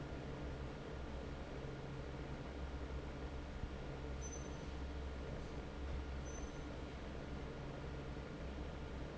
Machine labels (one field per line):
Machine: fan